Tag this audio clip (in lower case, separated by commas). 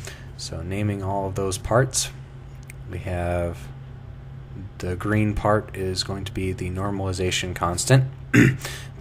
speech